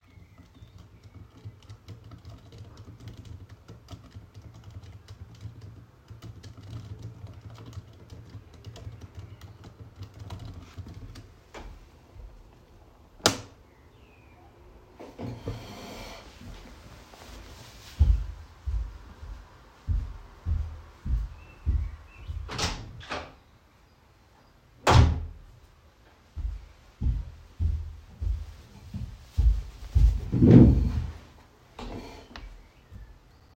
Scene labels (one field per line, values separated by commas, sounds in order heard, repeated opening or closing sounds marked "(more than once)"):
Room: living room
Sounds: keyboard typing, light switch, footsteps, door (more than once)